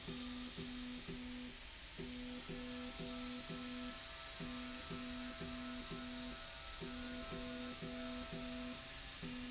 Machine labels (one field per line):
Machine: slide rail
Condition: normal